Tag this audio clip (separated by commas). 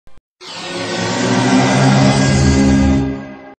Music, Television